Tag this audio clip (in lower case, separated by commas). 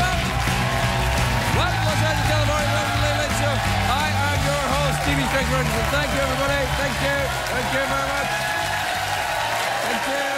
speech